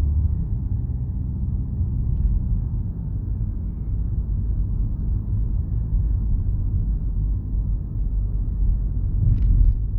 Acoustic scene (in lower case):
car